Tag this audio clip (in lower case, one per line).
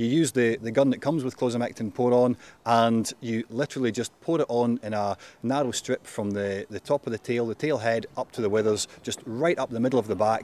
speech